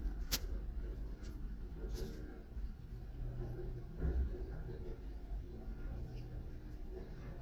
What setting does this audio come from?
elevator